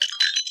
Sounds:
glass

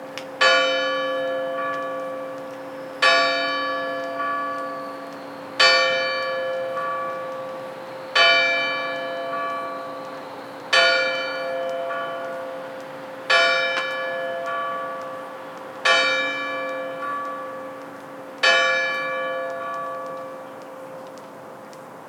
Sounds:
bell, church bell

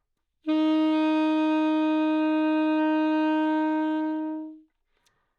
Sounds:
musical instrument, music, wind instrument

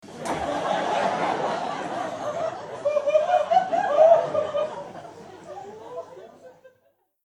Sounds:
laughter, human voice, human group actions, crowd

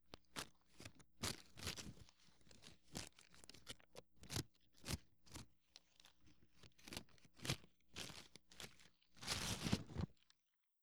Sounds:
scissors, domestic sounds

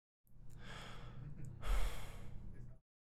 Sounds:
sigh, human voice

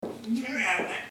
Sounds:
speech, human voice

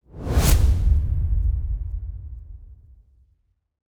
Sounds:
whoosh

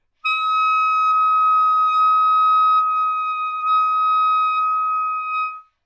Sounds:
music, woodwind instrument, musical instrument

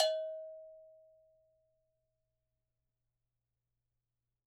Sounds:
musical instrument, percussion, music, bell

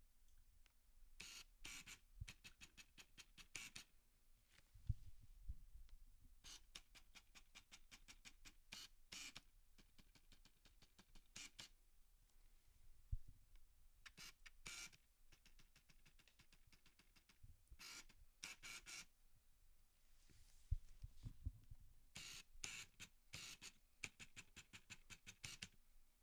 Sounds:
mechanisms, camera

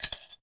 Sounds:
glass, home sounds, keys jangling

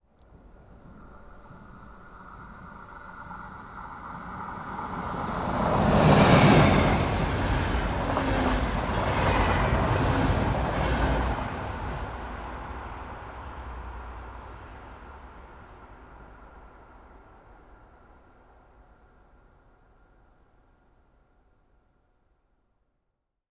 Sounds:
train, rail transport, vehicle

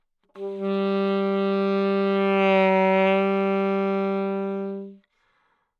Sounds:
wind instrument, musical instrument, music

